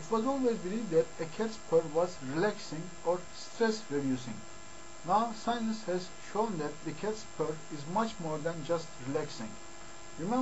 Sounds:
Speech, monologue

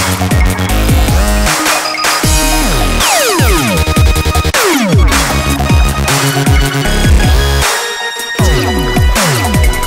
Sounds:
Electronic music, Music, Dubstep

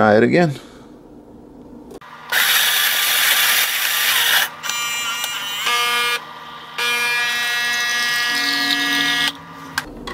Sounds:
Speech, inside a small room

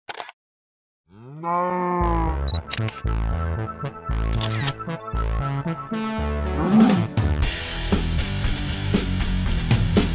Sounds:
Music

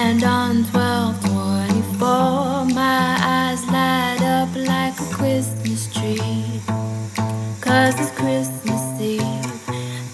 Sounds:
Music, Christmas music

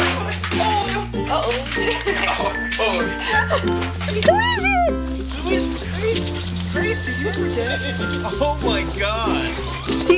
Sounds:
Speech, Music

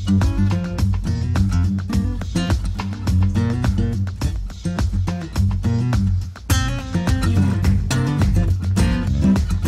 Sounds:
Music

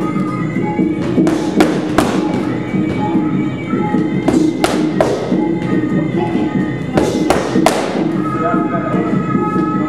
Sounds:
Music, Speech

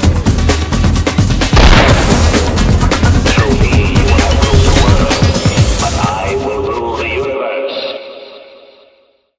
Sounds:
Speech, Fusillade, Music

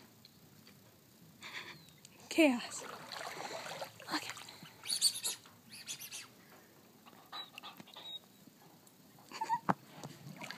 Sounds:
Animal

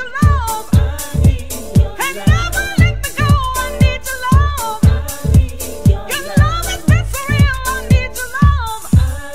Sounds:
Music, Electronic music

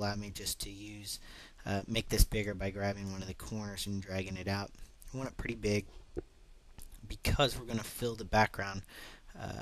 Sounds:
Speech

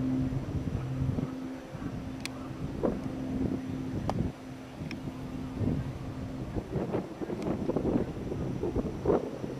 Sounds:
Aircraft, Vehicle, airplane

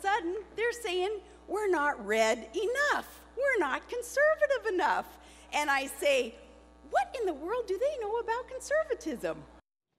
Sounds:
Speech

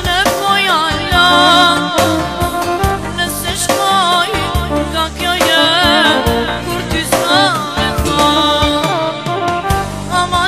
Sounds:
Music

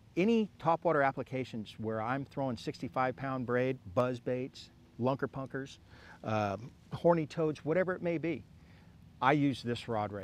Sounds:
Speech

